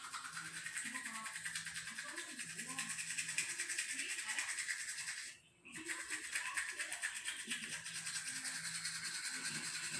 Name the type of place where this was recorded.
restroom